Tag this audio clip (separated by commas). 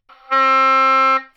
Music, Musical instrument, Wind instrument